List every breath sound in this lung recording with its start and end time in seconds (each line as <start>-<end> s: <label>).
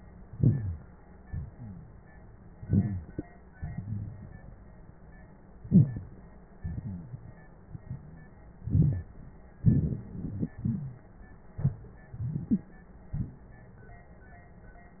0.34-0.99 s: inhalation
0.39-0.80 s: wheeze
1.23-2.26 s: exhalation
2.60-3.25 s: inhalation
2.70-3.06 s: rhonchi
3.58-4.97 s: exhalation
5.63-6.28 s: inhalation
5.67-6.08 s: wheeze
6.66-7.46 s: exhalation
7.61-8.41 s: exhalation
8.62-9.14 s: rhonchi
8.63-9.15 s: inhalation
9.61-10.50 s: rhonchi
9.64-11.03 s: exhalation
10.63-11.02 s: wheeze